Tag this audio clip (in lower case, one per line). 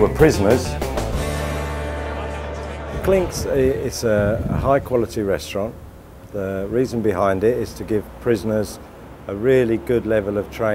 music
speech